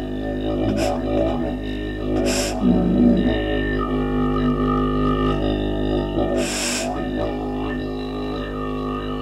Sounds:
didgeridoo
music
musical instrument

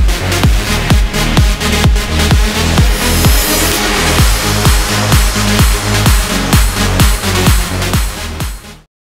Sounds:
music

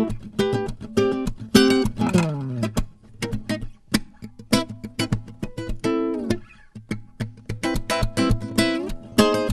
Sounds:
playing acoustic guitar
music
plucked string instrument
acoustic guitar
musical instrument

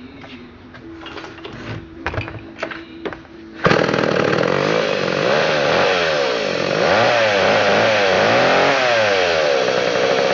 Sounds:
music
chainsawing trees
chainsaw

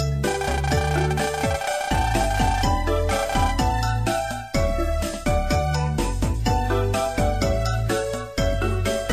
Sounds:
music

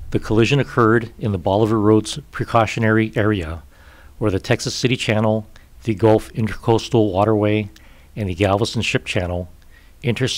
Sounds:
speech

